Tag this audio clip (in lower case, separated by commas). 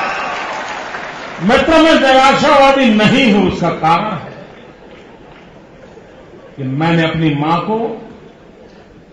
speech, monologue, man speaking